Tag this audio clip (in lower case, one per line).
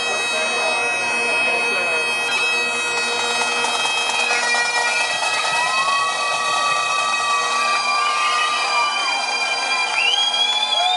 music